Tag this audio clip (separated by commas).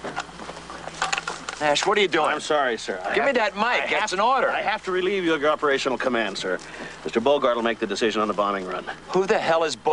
Speech, outside, rural or natural